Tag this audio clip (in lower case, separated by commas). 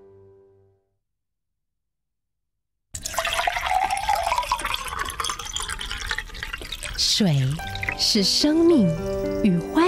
stream, music, gurgling, speech